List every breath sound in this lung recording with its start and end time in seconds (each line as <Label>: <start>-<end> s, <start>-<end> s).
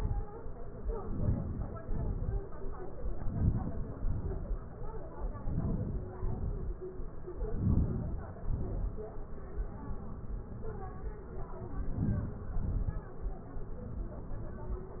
Inhalation: 1.12-1.78 s, 3.25-3.93 s, 5.49-6.15 s, 7.51-8.21 s, 11.92-12.62 s
Exhalation: 1.90-2.34 s, 4.01-4.57 s, 6.35-6.84 s, 8.41-8.96 s, 12.69-13.13 s